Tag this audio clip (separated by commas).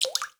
Drip, Liquid